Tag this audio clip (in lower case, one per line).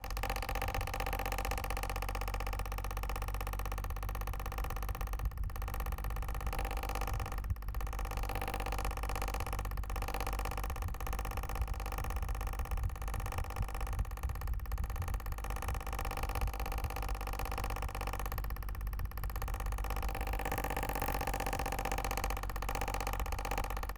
mechanical fan
mechanisms